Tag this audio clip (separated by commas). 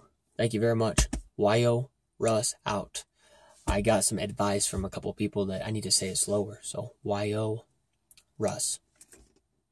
Speech